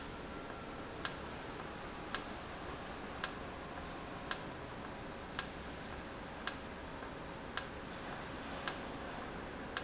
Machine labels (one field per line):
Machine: valve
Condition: normal